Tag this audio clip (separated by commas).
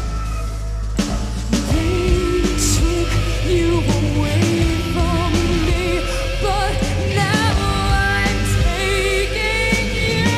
Music, Singing, Punk rock